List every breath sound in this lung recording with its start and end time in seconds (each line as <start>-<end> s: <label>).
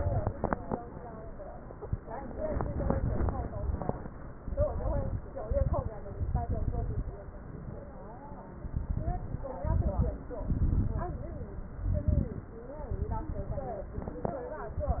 4.35-5.24 s: inhalation
4.35-5.24 s: crackles
5.43-5.91 s: exhalation
5.43-5.91 s: crackles
6.17-7.16 s: inhalation
6.17-7.16 s: crackles
8.64-9.48 s: inhalation
8.64-9.48 s: crackles
9.61-10.22 s: exhalation
9.61-10.22 s: crackles
10.47-11.30 s: inhalation
10.47-11.30 s: crackles
11.91-12.52 s: exhalation
11.91-12.52 s: crackles
12.94-13.96 s: inhalation
12.94-13.96 s: crackles